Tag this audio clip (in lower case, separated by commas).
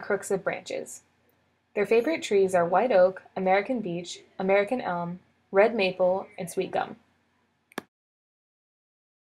speech, animal